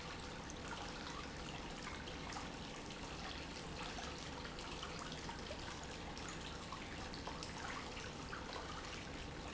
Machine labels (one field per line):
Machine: pump